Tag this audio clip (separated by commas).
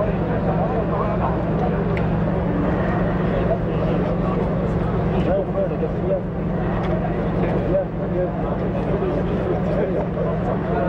Vehicle, Speech